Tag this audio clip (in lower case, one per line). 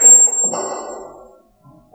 squeak